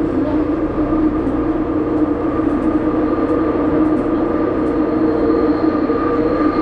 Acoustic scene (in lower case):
subway train